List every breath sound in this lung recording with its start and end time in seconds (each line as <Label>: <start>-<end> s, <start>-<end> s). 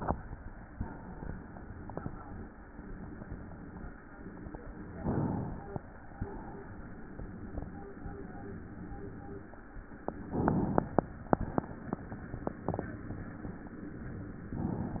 Inhalation: 5.00-6.13 s, 10.33-11.31 s, 14.56-15.00 s
Exhalation: 6.13-7.63 s, 11.31-12.81 s